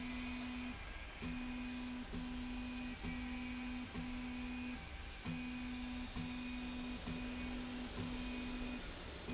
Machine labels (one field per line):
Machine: slide rail